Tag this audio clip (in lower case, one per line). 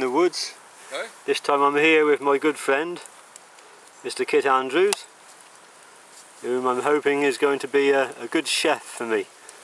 speech